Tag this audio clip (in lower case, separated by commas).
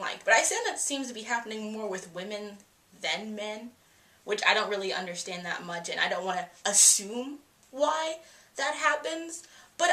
speech